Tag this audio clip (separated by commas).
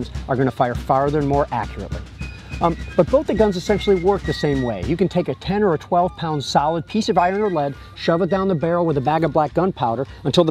Speech, Music